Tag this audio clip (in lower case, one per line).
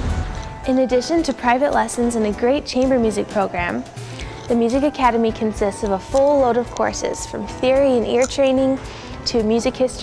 music
speech